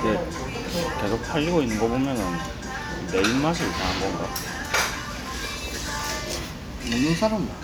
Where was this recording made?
in a restaurant